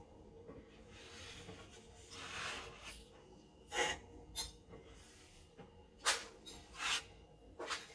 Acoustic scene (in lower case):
kitchen